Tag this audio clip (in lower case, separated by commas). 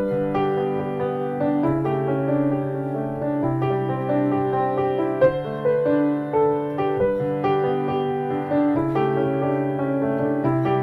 soundtrack music, music, happy music